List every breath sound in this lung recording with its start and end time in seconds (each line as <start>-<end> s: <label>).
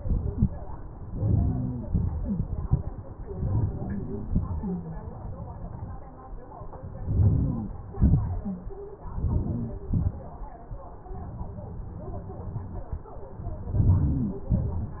1.11-1.80 s: inhalation
1.90-2.38 s: exhalation
3.33-3.93 s: inhalation
4.30-4.88 s: exhalation
7.07-7.74 s: inhalation
8.00-8.56 s: exhalation
9.06-9.72 s: inhalation
9.93-10.47 s: exhalation
13.65-14.38 s: inhalation
14.56-15.00 s: exhalation